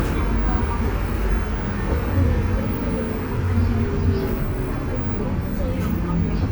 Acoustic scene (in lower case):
bus